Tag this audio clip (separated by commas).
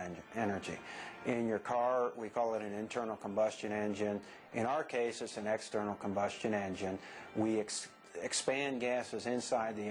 Speech, Music